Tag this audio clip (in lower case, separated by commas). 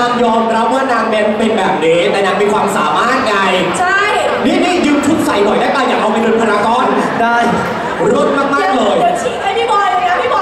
speech